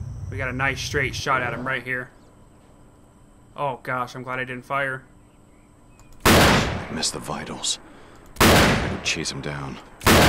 Following one male speaking three gunshots ring off concurrent with a separate deep male voice